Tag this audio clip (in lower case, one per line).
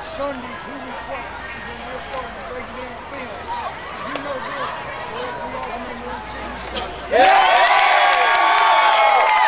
monologue
man speaking
speech